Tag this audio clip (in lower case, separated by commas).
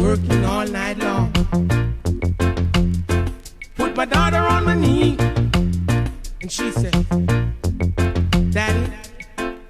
music, funny music